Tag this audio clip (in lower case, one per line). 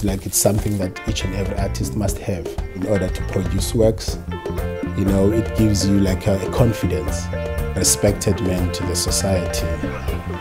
speech
music